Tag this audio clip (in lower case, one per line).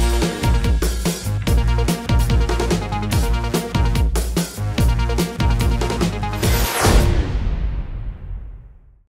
music